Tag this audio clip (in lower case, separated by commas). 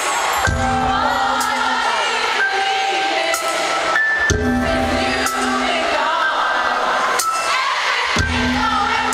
female singing, crowd, music